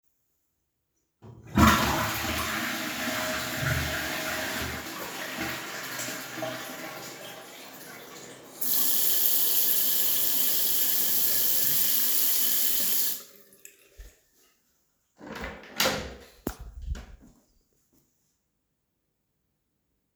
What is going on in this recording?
I flushed the toilet, washed my hands and opened the door